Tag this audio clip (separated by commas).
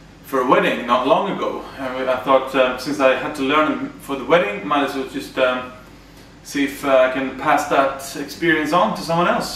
Speech